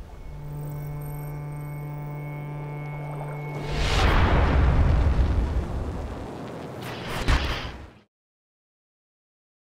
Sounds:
music

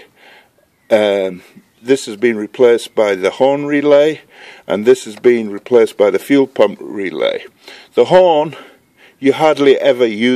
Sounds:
outside, rural or natural, speech

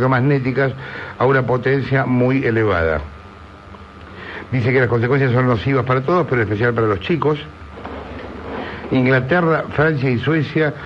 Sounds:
speech

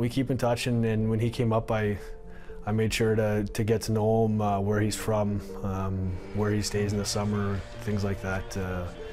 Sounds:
speech, music

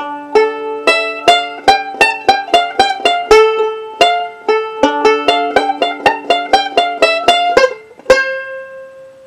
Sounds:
banjo, music, plucked string instrument, musical instrument, playing banjo

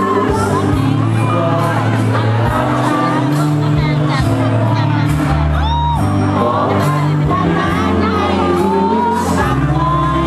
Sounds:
male singing, speech, music

